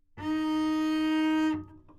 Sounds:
musical instrument, music, bowed string instrument

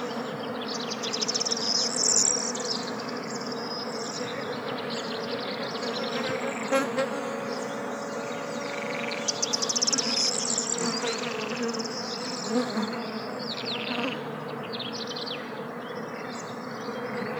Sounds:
animal, wild animals, bird, insect

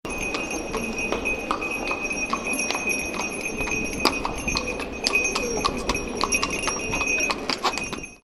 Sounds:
livestock, animal

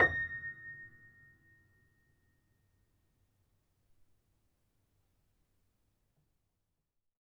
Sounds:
piano, keyboard (musical), music, musical instrument

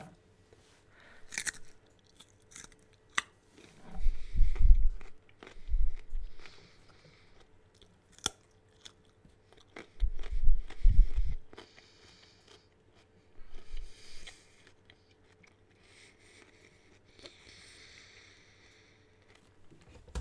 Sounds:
chewing

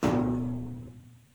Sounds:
thud

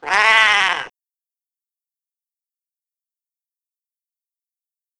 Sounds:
cat, meow, pets, animal

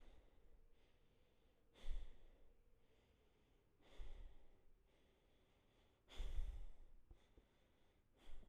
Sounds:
breathing, respiratory sounds

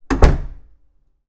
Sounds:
door, slam, domestic sounds

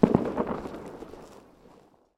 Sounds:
fireworks, explosion

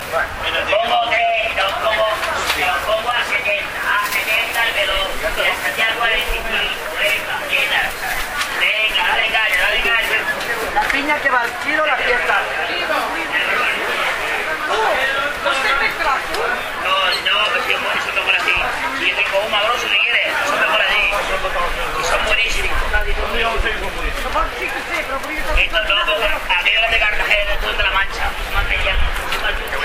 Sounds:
conversation, speech, human voice

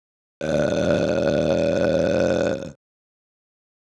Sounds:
eructation

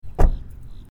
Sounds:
motor vehicle (road), vehicle, car, home sounds, slam, door

